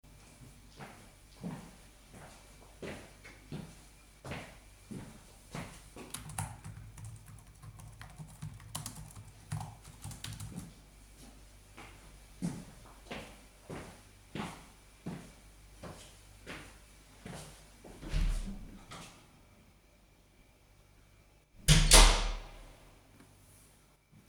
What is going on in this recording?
I came in, started typing on the keyboard, then walked to the door, opened it, walked out, then closed the door.